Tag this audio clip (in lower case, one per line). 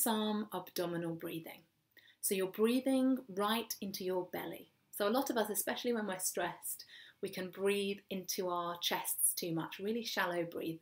speech